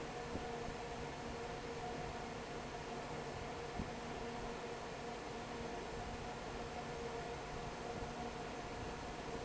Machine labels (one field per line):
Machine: fan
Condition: normal